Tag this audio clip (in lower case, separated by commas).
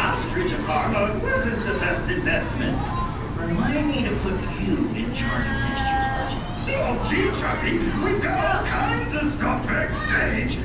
speech